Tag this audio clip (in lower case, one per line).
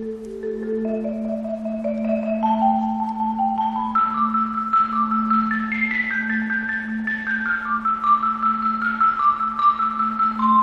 xylophone